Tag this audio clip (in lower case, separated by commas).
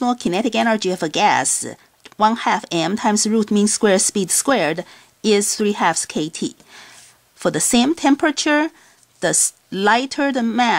speech